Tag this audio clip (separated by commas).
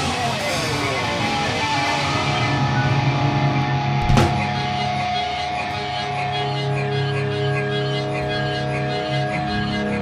Rock music, Music